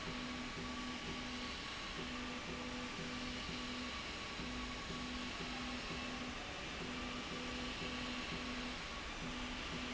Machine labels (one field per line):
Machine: slide rail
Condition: normal